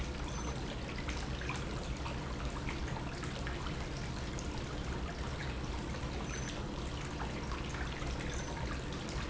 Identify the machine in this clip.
pump